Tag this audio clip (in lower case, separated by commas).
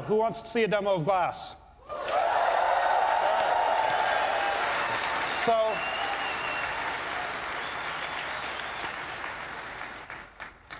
speech